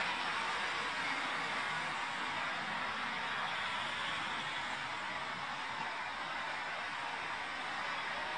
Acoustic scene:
street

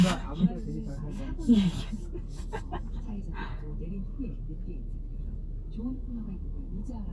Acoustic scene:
car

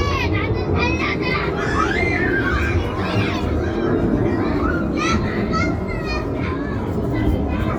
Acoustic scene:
residential area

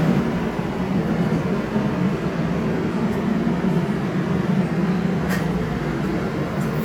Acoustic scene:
subway station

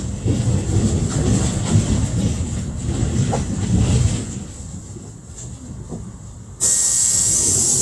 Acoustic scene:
bus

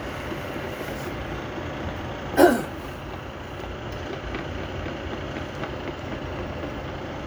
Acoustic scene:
street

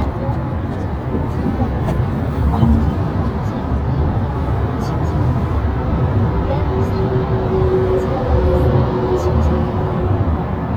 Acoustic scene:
car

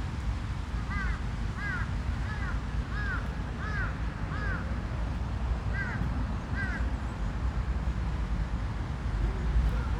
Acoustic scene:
residential area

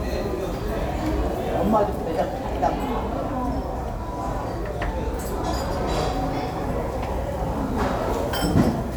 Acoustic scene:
restaurant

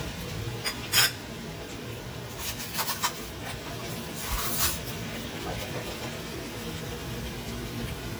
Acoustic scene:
kitchen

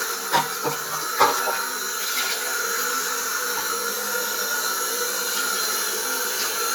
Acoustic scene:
restroom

